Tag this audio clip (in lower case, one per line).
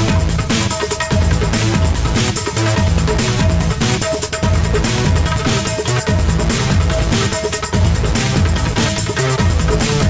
theme music
music